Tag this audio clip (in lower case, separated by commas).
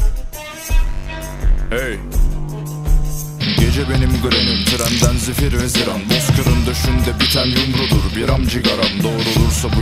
music